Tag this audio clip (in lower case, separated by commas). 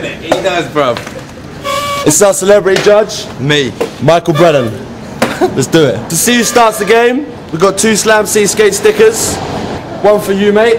speech